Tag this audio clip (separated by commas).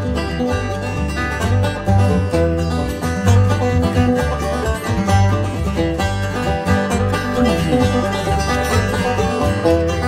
Music